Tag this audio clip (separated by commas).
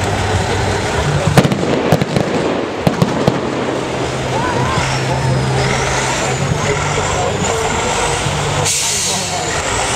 Speech, Truck, Vehicle